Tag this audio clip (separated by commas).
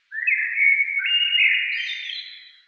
Wild animals, Bird, Animal